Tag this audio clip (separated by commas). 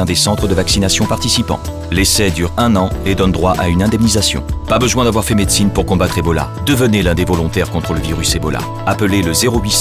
Music, Speech